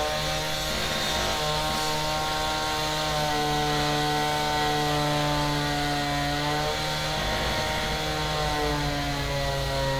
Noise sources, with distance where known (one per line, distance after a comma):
large rotating saw, near